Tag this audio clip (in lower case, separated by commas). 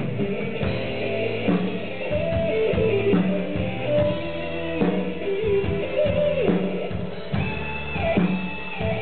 music